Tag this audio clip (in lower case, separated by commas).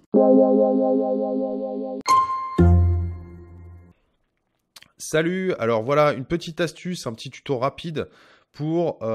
music, speech